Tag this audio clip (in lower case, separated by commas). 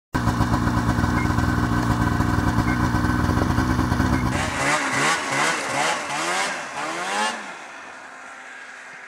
motorcycle, auto racing, vehicle, driving motorcycle